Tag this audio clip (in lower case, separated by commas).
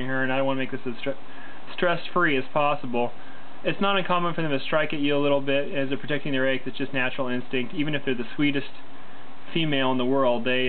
speech